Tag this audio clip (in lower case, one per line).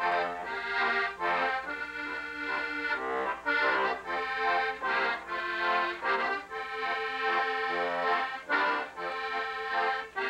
playing accordion